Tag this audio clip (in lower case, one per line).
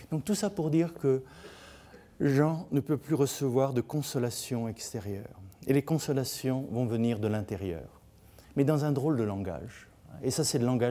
speech